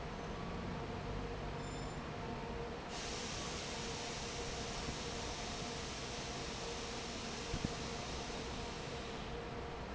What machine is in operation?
fan